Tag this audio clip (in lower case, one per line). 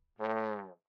brass instrument
music
musical instrument